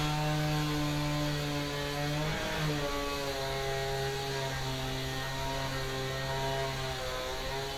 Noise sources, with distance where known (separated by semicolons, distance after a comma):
unidentified powered saw, near